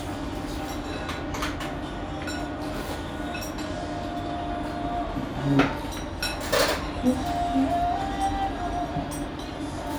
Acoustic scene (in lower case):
restaurant